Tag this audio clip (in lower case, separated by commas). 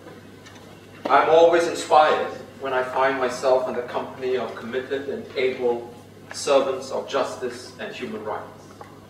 male speech, speech